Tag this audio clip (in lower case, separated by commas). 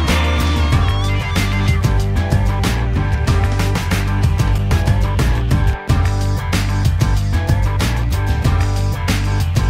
music